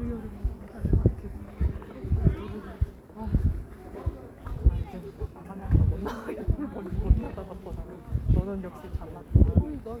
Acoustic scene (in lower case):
park